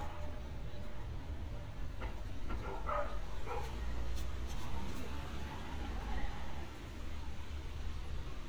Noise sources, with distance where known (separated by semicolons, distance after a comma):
dog barking or whining, far